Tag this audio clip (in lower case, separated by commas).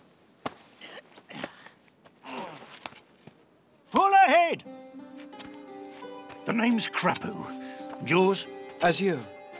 speech, footsteps, music